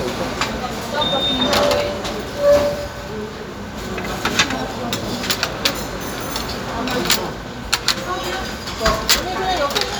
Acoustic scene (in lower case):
restaurant